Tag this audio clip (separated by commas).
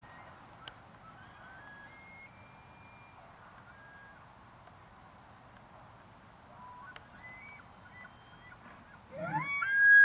elk bugling